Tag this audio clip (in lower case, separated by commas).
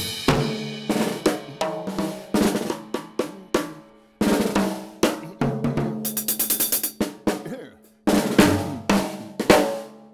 music, drum, hi-hat, musical instrument, drum kit, inside a large room or hall